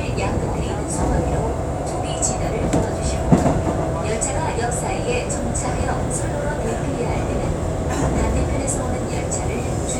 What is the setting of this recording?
subway train